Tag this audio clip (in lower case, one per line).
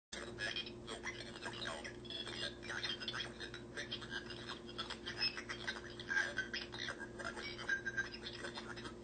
speech
inside a small room